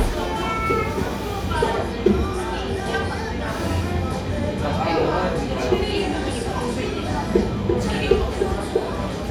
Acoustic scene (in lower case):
cafe